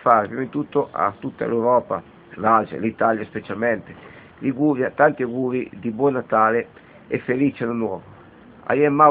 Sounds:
Speech

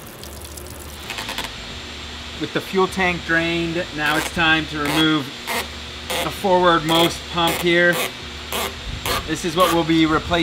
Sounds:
inside a large room or hall, Speech

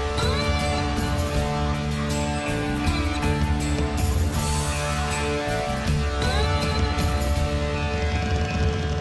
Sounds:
Music

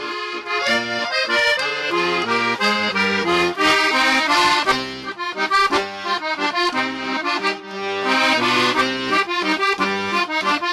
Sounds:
Music, Accordion, playing accordion

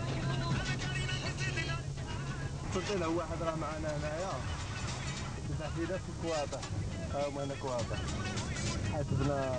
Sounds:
Music, Speech

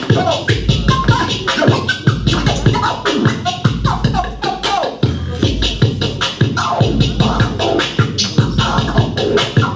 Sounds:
Scratching (performance technique), Music, Electronic music, Speech

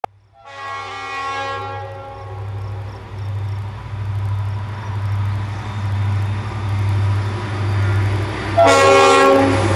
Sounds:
outside, rural or natural, train wagon, Vehicle, Rail transport, Train, Train horn

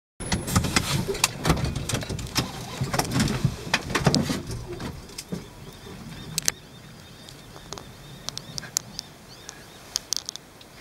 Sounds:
Bird, outside, rural or natural

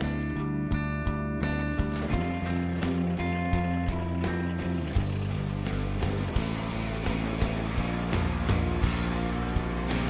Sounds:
Music

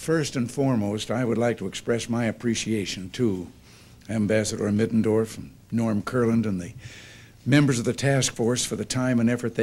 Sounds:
Speech, monologue, man speaking

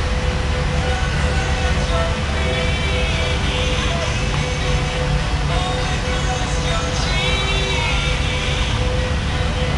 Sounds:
Music

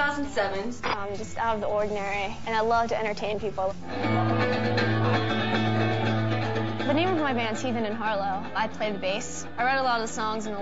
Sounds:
Speech, Music

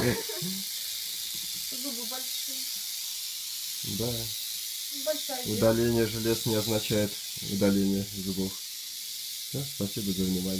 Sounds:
snake rattling

